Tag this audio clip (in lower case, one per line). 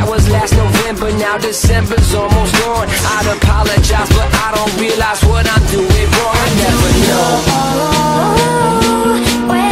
rhythm and blues
music